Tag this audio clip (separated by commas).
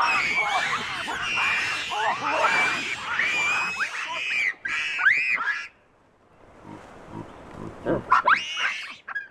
outside, rural or natural, Animal